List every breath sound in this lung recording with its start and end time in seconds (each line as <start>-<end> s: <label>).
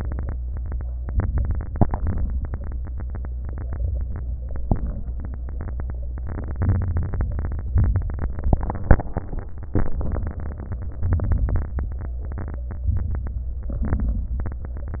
1.03-1.89 s: inhalation
1.90-2.76 s: exhalation
1.90-2.80 s: crackles
6.66-7.77 s: inhalation
7.82-8.94 s: exhalation
11.03-11.87 s: inhalation
12.89-13.82 s: inhalation
13.86-14.99 s: exhalation